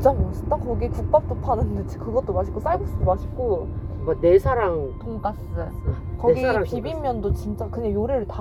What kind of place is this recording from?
car